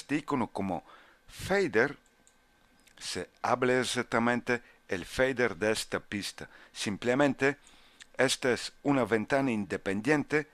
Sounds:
speech

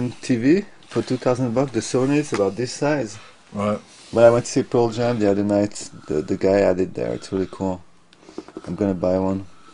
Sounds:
inside a small room, speech

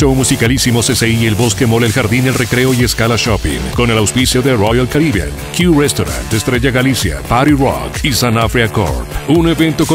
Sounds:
dubstep, electronic music, speech, music

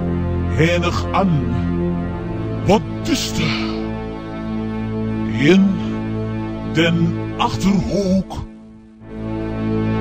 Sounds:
speech, music

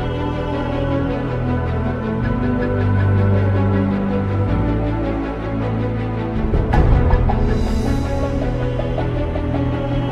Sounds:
soundtrack music, music

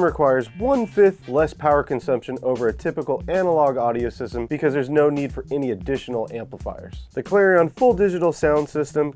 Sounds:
speech, music

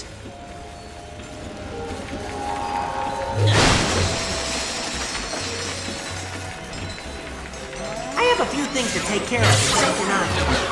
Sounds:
speech, music

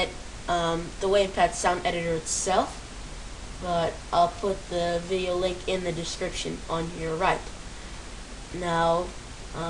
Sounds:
speech, sizzle

